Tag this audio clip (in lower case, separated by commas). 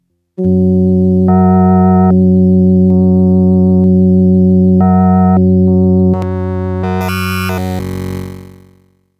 music, keyboard (musical), musical instrument